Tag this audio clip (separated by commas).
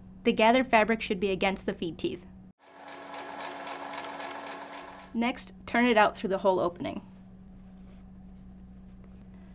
Sewing machine